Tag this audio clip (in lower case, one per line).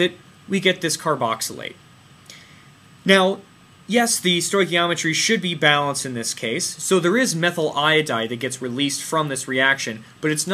speech